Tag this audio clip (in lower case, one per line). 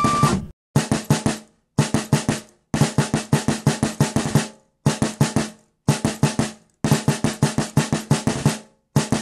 playing snare drum